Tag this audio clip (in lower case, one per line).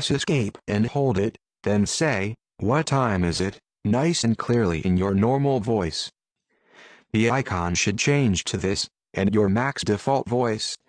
monologue
speech
male speech